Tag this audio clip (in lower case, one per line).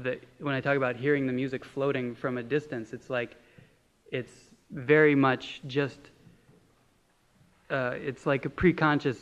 speech